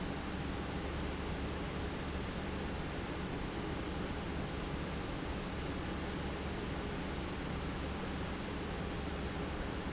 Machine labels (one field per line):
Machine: pump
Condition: normal